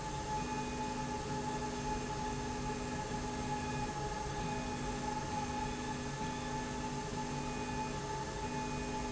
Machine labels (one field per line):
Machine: slide rail